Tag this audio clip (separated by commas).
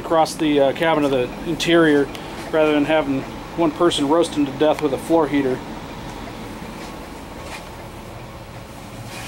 outside, urban or man-made, Vehicle, Bus, Speech